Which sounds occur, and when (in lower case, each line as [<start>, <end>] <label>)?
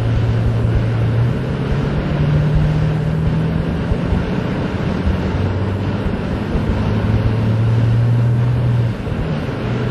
[0.01, 9.90] vehicle